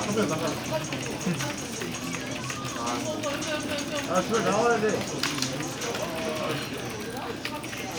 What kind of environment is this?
crowded indoor space